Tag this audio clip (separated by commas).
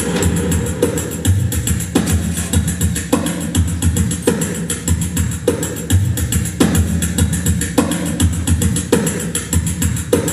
Music